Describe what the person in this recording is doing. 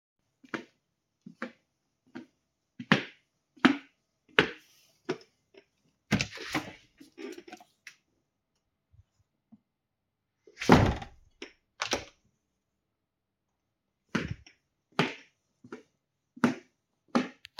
I walked across the room, opened and closed the window, and continued walking before ending the recording.